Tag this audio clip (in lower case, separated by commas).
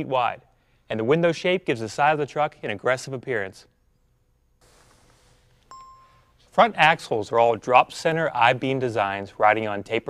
speech